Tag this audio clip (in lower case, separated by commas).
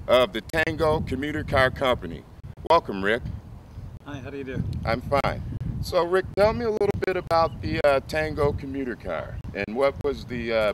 speech